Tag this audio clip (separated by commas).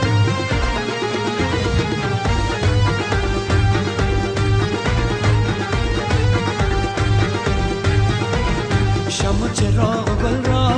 Wedding music, Music